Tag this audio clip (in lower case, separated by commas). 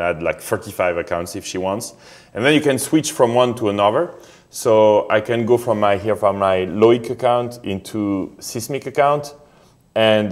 speech